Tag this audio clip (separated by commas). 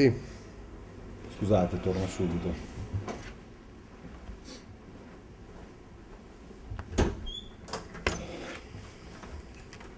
Door, Speech